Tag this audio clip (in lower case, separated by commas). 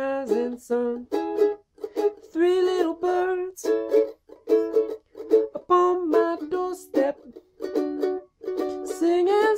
playing mandolin